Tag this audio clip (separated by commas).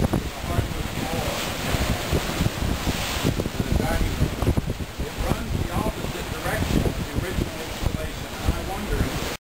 Ocean, ocean burbling, Speech